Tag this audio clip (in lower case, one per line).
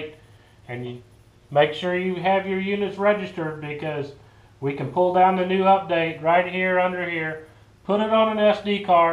speech